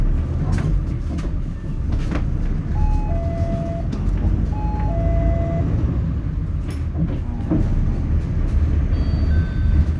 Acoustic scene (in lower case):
bus